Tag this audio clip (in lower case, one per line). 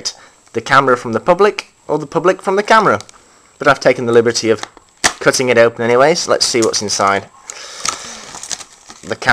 speech